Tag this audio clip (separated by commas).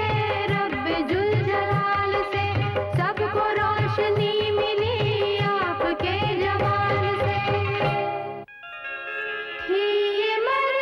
Music